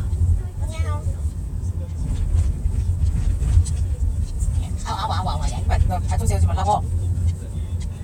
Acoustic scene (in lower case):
car